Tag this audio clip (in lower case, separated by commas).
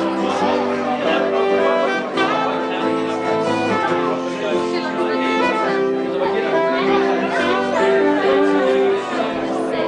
music, musical instrument, speech